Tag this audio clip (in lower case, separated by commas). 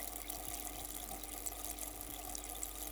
liquid